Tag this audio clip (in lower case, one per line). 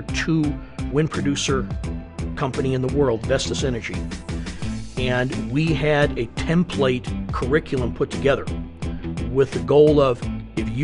music
speech